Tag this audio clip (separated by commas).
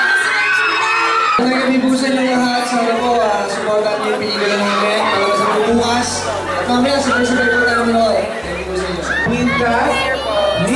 Children shouting, Cheering, Crowd